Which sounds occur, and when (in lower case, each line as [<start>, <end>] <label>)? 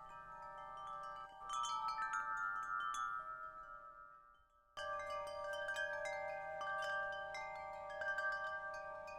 [0.00, 9.15] chime